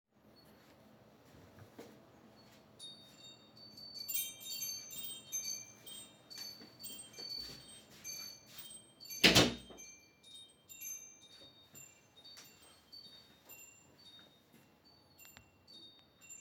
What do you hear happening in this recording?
I decided to ring my favorite bell as I was walking in the bedroom and then walked out to the kitchen.